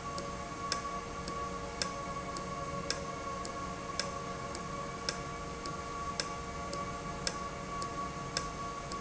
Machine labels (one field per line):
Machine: valve